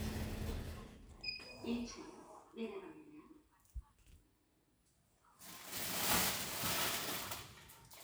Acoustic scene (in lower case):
elevator